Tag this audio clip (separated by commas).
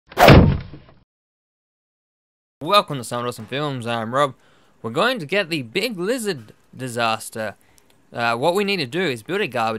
Whack